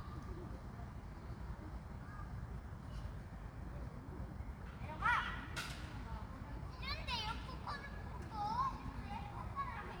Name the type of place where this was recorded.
park